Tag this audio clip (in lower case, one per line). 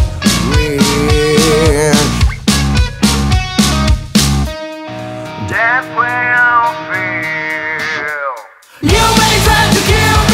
music